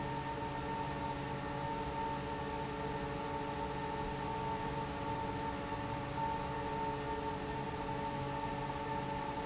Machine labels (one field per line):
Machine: fan